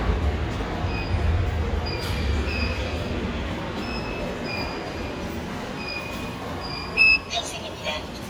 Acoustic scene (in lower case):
subway station